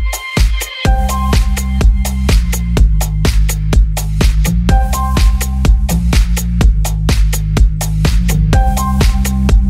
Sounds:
music

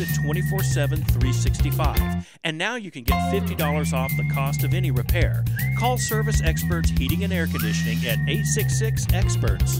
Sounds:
music
speech

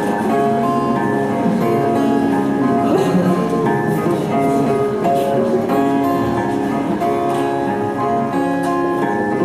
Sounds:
music
speech
classical music

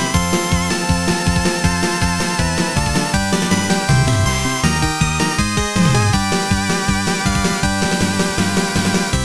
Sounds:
music

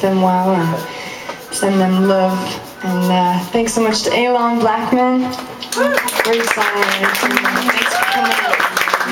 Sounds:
speech

